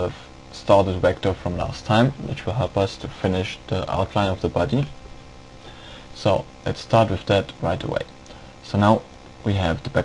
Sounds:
Speech

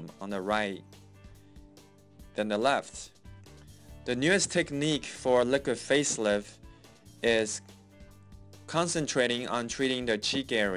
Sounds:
Music, Speech

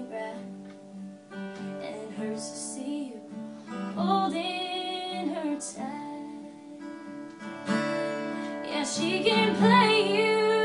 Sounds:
Music, Musical instrument

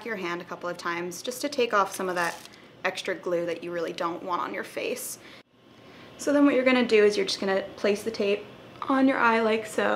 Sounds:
Speech

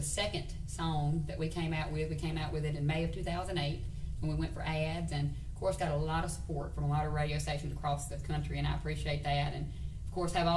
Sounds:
Speech

